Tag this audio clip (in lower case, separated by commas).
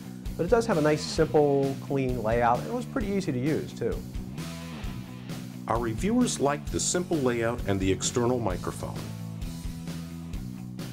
music, speech